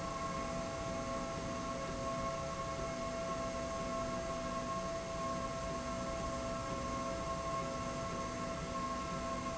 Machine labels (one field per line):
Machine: slide rail